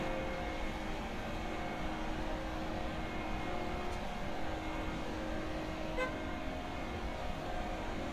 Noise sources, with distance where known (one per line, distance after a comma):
car horn, near